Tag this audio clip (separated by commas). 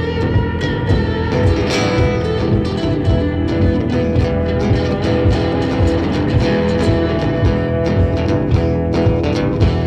Music, Plucked string instrument, Musical instrument, Guitar